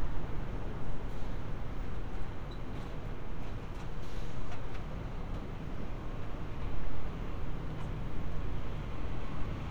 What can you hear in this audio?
engine of unclear size